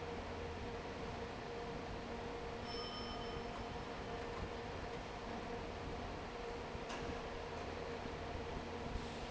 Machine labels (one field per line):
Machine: fan